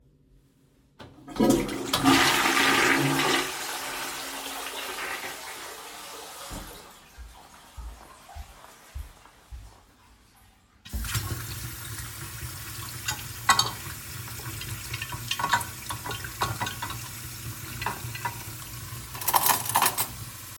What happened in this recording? I was in the toilet, flushed the toilet, then went to the kitchen to wash the dishes.